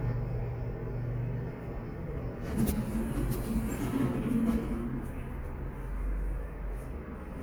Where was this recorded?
in an elevator